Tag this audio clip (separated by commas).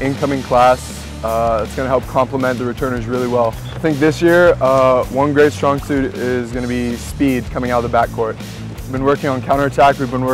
Speech, Music